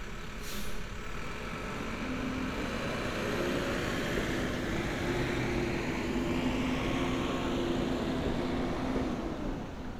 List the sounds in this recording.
large-sounding engine